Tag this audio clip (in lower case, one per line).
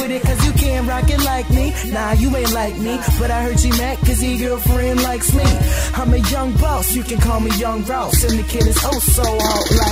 music
pop music